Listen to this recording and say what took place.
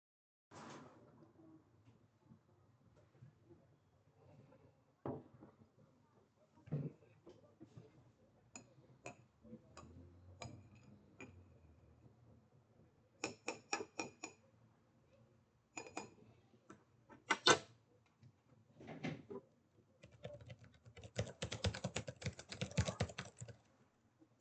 I sat down at my desk with a cup of tea. I stirred the tea and typed on my keyboard.